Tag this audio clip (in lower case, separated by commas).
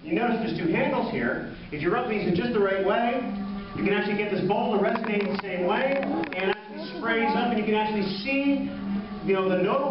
music, speech